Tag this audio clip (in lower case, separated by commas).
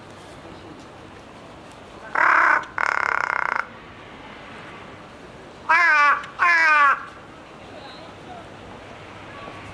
crow cawing